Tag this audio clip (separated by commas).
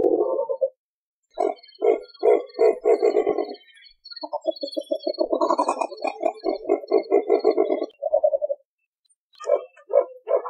owl hooting